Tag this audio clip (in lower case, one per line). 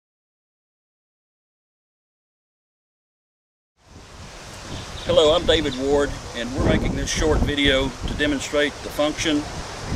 animal
wind
speech